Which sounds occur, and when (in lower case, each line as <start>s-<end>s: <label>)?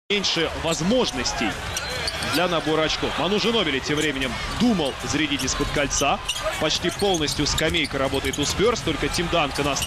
0.1s-1.6s: man speaking
0.1s-9.8s: cheering
0.1s-9.8s: music
1.7s-2.1s: squeal
2.3s-6.2s: man speaking
4.4s-4.7s: squeal
6.2s-6.5s: squeal
6.6s-9.8s: man speaking
6.8s-7.9s: squeal
8.3s-8.5s: squeal
9.5s-9.8s: squeal